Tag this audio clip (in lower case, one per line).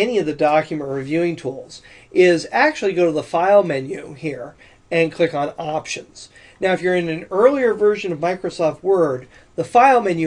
speech